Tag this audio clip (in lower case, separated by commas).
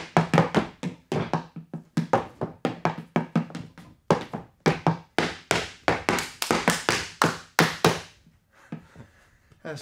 tap dancing